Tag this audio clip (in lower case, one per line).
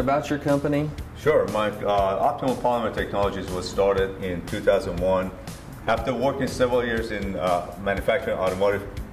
speech
music